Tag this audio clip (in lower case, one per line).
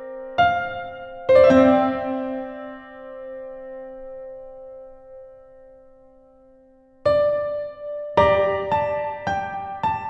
piano
electric piano
keyboard (musical)